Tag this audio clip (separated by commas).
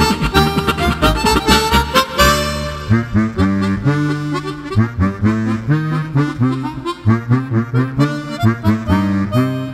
playing harmonica